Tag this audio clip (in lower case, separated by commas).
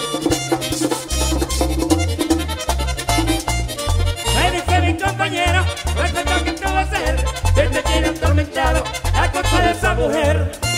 music, background music, rhythm and blues, new-age music